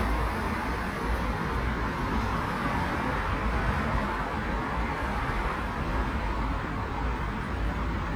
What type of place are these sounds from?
street